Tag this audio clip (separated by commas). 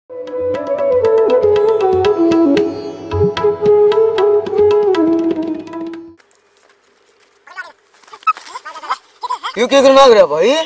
Speech, Music